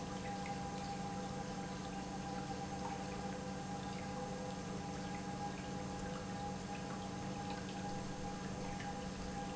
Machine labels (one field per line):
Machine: pump